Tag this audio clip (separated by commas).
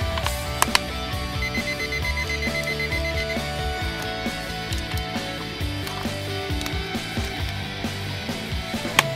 Music, Clock, Alarm clock